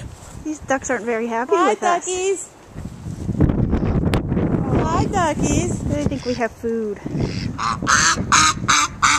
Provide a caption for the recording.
Two woman speak, the wind blows, and ducks quack